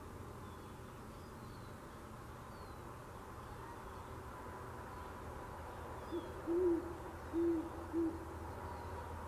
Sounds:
owl hooting

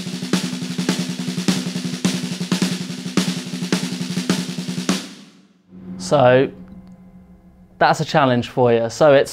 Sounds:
playing snare drum

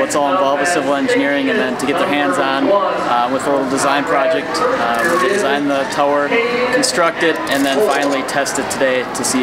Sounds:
speech

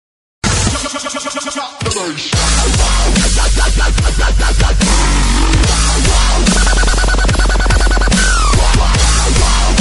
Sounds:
electronic music
music
dubstep

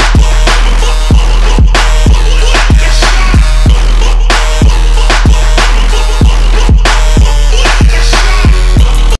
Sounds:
music

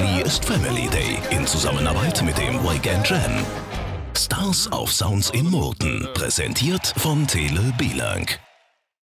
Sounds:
speech
music

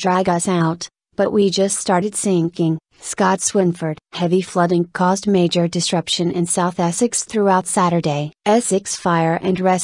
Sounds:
speech

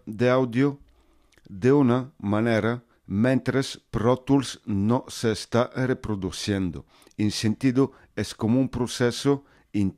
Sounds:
speech

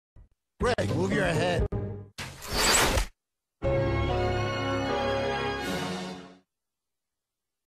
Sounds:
music
television
speech

